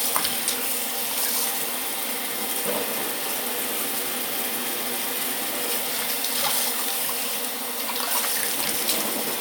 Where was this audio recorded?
in a restroom